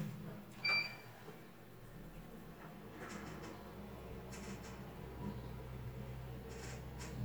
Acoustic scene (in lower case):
elevator